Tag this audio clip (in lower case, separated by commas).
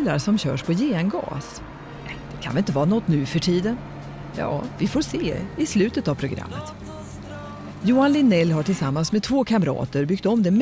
music, speech